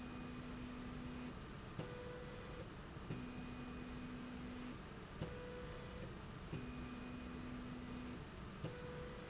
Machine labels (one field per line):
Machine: slide rail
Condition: normal